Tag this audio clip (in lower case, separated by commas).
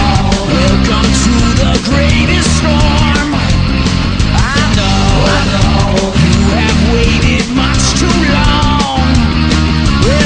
music